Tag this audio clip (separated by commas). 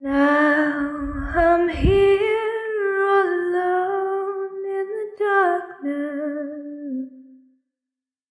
Human voice, Female singing, Singing